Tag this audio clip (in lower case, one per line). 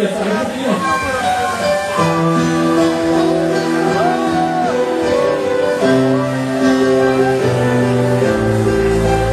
speech
music